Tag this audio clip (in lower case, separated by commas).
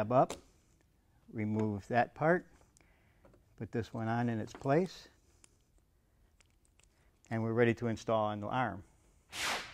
speech